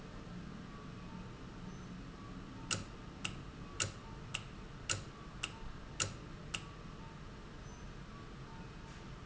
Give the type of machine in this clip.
valve